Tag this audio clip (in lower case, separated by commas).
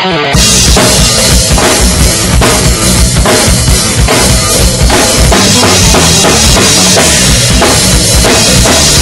drum kit, drum, musical instrument, music